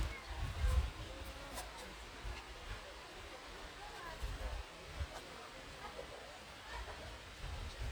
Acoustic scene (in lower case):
park